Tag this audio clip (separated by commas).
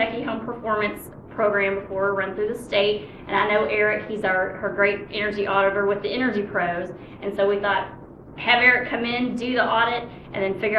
Speech